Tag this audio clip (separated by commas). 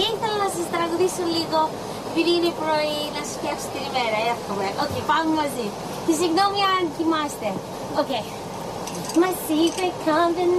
Speech